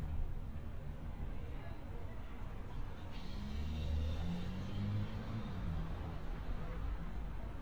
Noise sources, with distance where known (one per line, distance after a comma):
medium-sounding engine